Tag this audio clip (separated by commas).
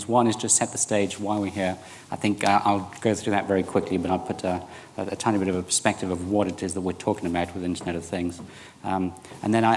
Speech